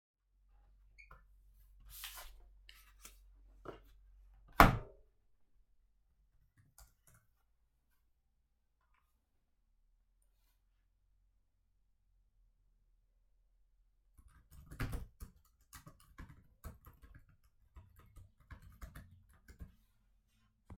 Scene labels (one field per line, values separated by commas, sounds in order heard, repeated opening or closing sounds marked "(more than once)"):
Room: office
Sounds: keyboard typing